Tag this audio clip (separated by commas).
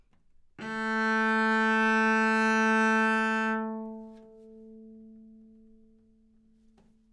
Music, Musical instrument, Bowed string instrument